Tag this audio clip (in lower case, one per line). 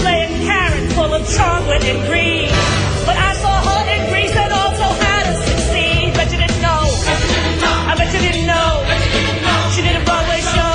music
choir
female singing